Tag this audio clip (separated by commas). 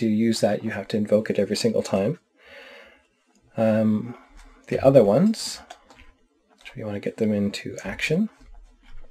Speech, inside a small room